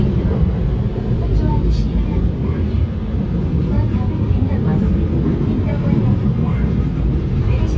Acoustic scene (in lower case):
subway train